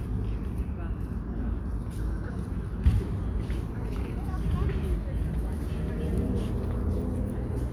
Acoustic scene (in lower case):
park